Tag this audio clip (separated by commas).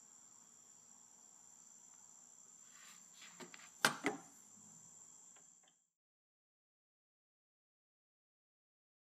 planing timber